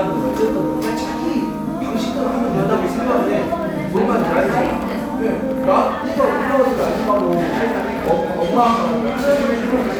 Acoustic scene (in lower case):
cafe